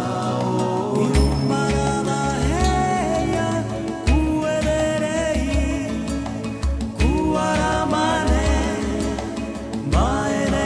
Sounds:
Soul music, Music

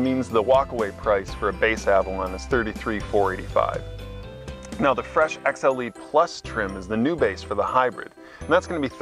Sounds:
Speech

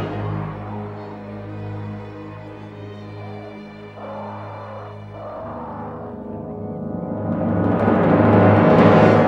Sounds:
Music, Timpani

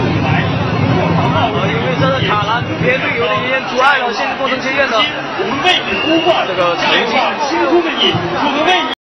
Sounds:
outside, urban or man-made, Speech

